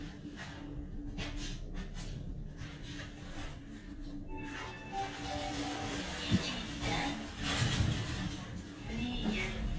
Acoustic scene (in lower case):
elevator